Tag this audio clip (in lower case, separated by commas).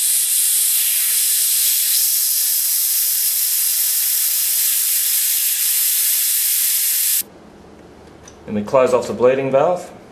steam, hiss